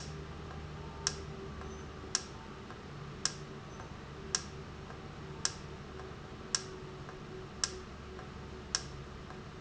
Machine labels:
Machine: valve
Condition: normal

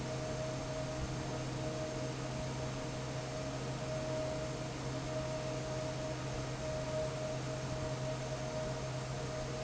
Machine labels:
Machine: fan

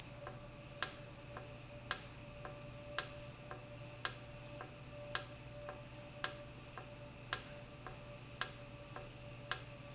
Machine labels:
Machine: valve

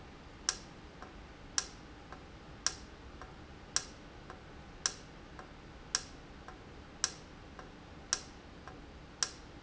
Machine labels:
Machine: valve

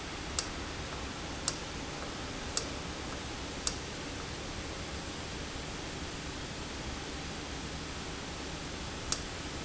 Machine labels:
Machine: valve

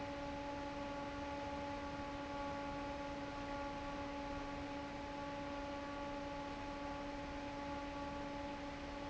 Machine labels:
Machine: fan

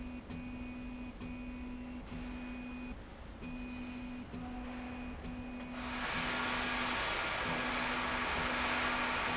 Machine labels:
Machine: slide rail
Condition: normal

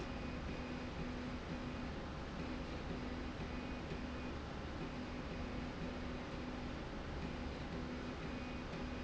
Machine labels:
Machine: slide rail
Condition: normal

